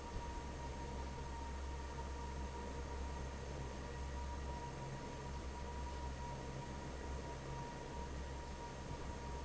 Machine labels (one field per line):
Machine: fan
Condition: normal